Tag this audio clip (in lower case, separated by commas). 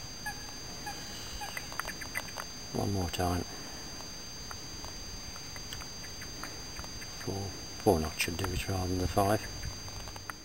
speech, outside, rural or natural